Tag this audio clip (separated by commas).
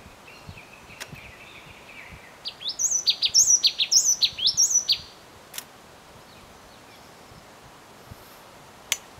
Bird